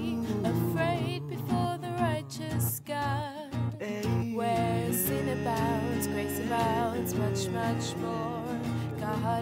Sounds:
Music

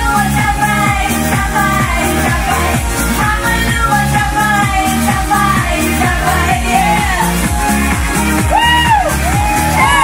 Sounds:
Speech, Music

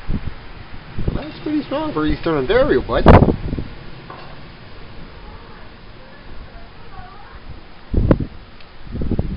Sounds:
Wind, Speech

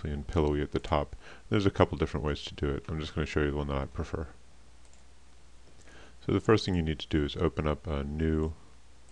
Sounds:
Speech

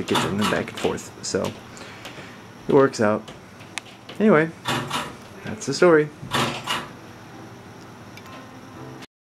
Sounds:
Speech, Music

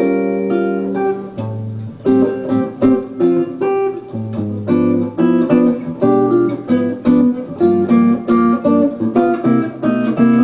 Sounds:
Musical instrument, Guitar, Plucked string instrument, Strum, Acoustic guitar, Music

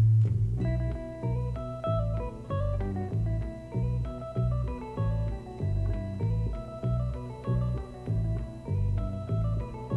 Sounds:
Music

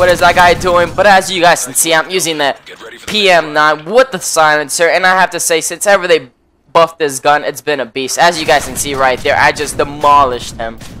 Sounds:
Speech

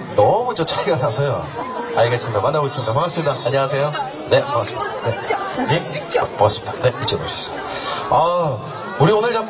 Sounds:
Speech

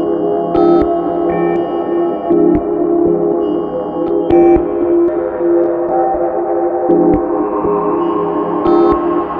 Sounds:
Music

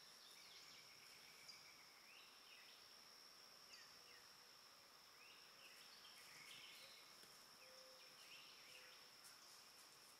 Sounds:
Bird, Animal

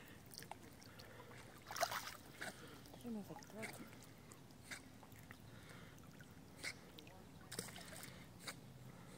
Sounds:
Speech

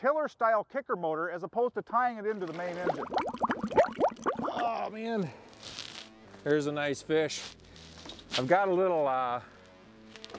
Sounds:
Speech, Music

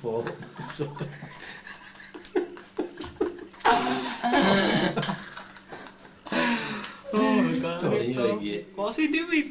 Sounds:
Male speech, Fart, Speech

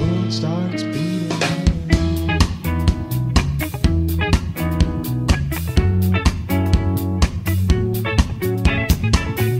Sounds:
Music

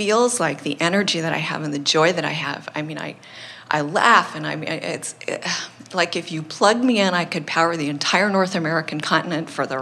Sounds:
Speech

